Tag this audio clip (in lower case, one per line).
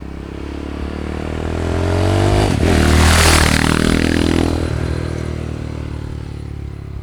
motor vehicle (road)
vehicle
motorcycle
engine